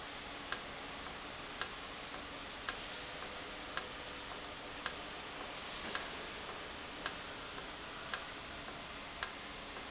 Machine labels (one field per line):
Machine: valve